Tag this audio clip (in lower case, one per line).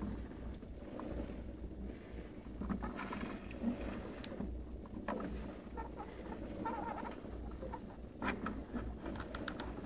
inside a small room